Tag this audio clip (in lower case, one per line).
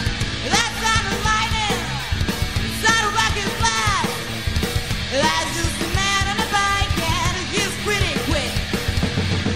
music